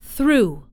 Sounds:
woman speaking
speech
human voice

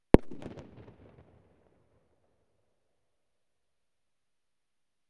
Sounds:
fireworks
explosion

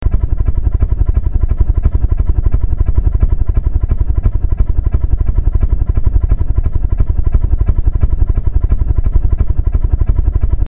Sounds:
aircraft
vehicle

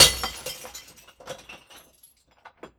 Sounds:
shatter
crushing
glass

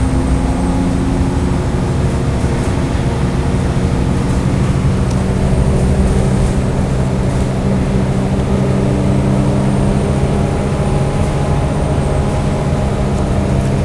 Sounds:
vehicle
bus
motor vehicle (road)

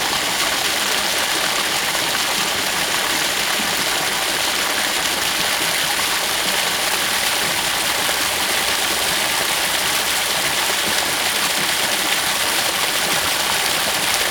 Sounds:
stream
water

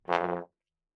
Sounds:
brass instrument
music
musical instrument

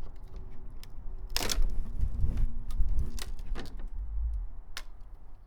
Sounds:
crack

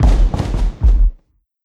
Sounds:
explosion
fireworks

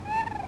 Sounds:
bird
wild animals
animal

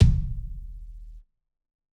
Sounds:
percussion
musical instrument
bass drum
music
drum

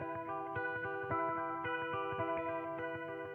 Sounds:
plucked string instrument
musical instrument
electric guitar
guitar
music

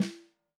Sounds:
drum
music
percussion
snare drum
musical instrument

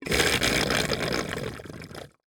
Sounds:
gurgling
water

